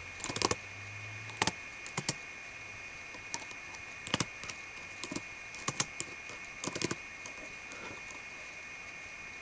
An individual typing on a keyboard